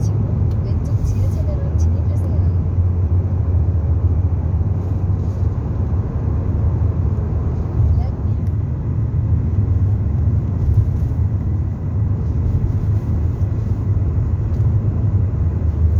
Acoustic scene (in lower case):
car